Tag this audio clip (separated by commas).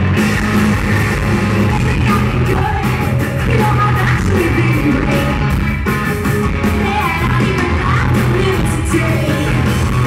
Music